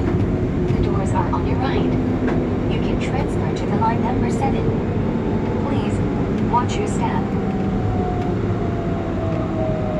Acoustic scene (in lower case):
subway train